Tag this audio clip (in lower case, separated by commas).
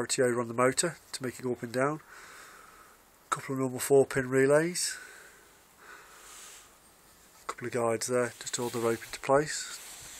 speech